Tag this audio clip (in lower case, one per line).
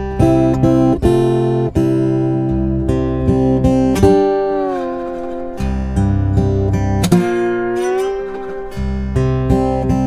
playing steel guitar